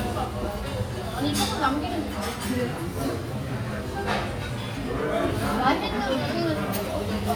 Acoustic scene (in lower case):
restaurant